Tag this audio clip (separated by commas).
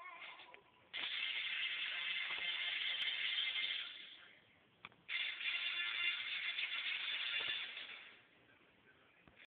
Television